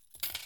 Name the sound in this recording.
metal object falling